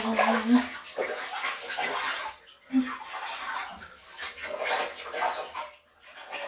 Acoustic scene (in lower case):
restroom